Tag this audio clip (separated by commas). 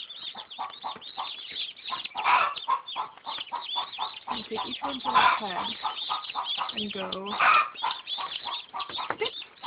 Speech, Bird